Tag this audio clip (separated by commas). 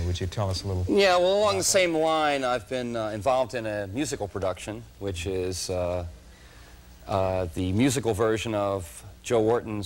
Speech